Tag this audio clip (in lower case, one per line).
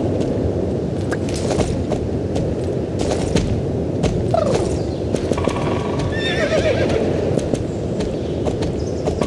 animal
horse